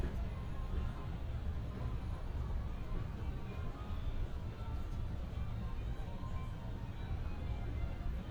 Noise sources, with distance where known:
music from an unclear source

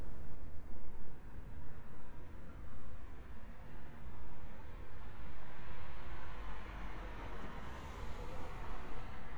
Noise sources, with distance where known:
medium-sounding engine, far

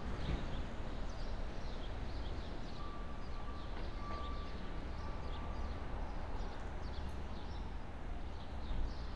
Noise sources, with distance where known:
reverse beeper

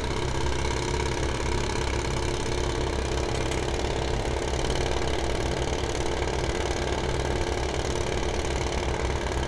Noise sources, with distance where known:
jackhammer, near

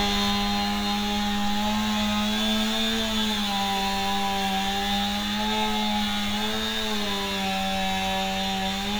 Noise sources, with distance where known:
small or medium rotating saw, near

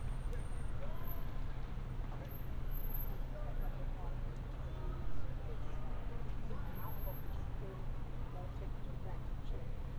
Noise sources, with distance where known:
unidentified human voice, far

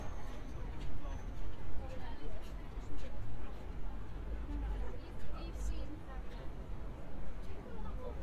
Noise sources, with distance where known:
person or small group talking, near

